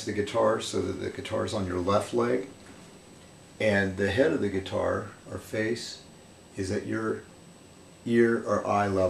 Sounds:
speech

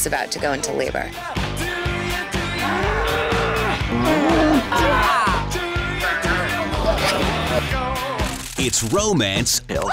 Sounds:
livestock
cattle
moo

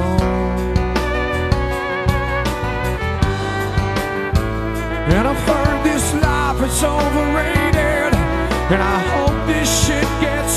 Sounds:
music

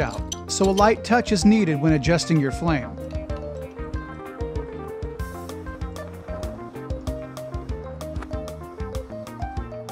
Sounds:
music
speech

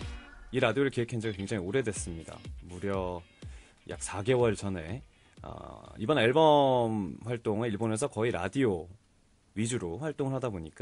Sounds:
speech
music

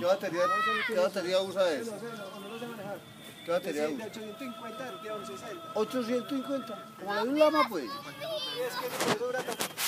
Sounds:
speech

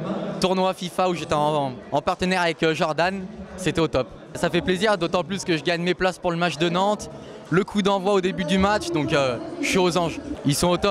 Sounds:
speech

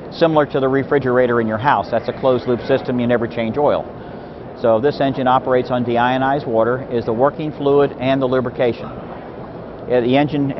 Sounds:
speech

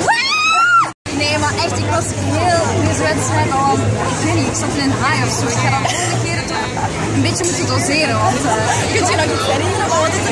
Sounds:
speech

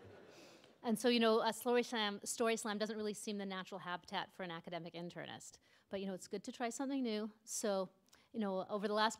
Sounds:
speech

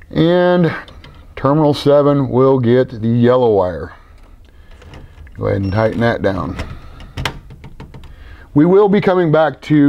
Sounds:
speech

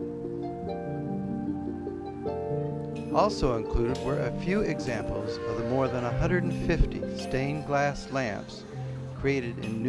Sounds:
music
speech
chink

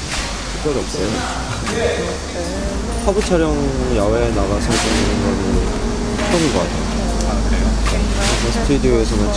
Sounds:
inside a small room
speech
music

